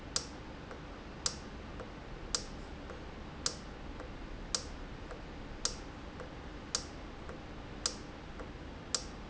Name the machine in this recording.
valve